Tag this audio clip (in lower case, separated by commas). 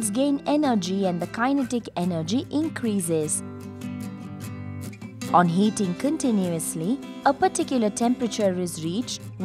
speech, music